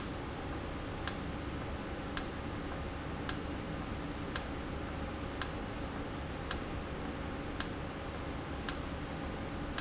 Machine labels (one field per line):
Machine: valve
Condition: normal